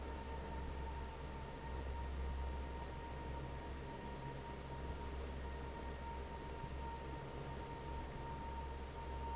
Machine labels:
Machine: fan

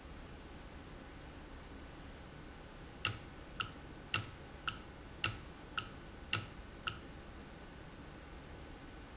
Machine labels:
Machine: valve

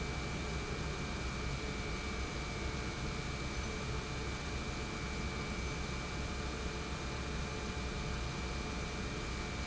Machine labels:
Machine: pump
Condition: normal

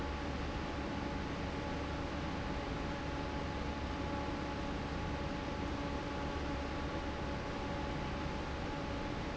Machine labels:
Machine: fan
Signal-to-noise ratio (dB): -6 dB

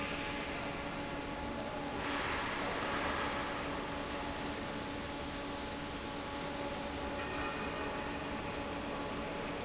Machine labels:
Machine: fan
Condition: normal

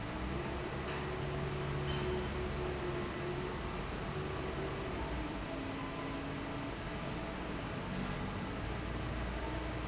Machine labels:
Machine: fan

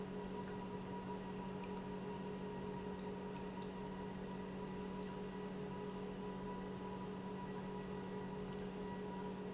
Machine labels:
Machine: pump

